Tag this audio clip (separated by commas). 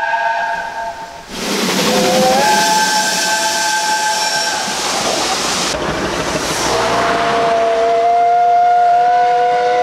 train whistling